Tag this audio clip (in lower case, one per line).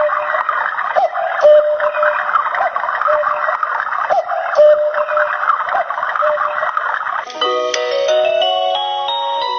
tick-tock
music